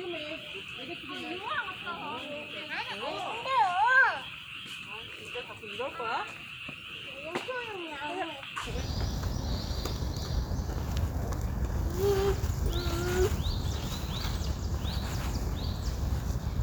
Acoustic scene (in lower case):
park